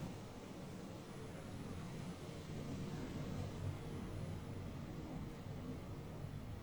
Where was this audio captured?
in an elevator